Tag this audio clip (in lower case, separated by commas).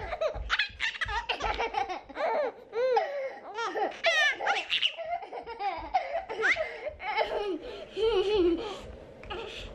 people belly laughing